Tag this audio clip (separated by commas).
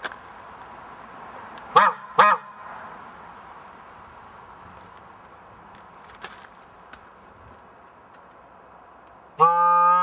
car horn